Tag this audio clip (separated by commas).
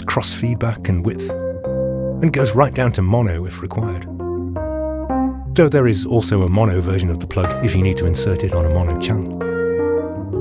Speech, Music